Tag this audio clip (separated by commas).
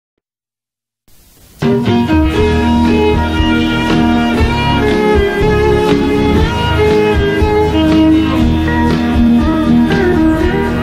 Music, Blues